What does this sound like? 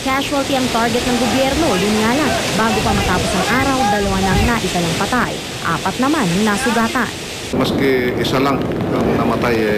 Wind blowing while a woman talks and then a man speaks